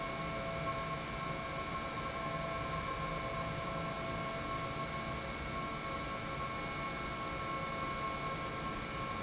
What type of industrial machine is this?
pump